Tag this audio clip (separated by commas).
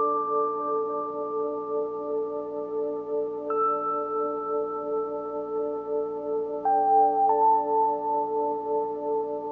Music